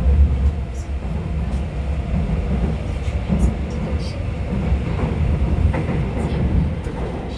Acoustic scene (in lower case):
subway train